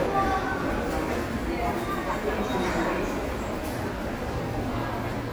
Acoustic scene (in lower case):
subway station